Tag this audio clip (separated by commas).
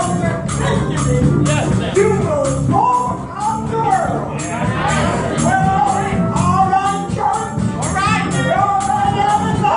Speech, Music, Rattle